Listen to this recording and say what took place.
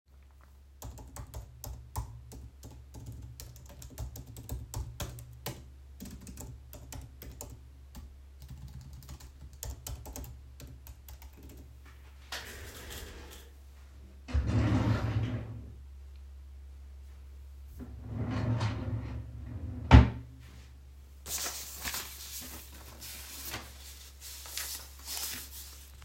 I typed something on the keyboard, went up to the drawer, got papers there and looked through them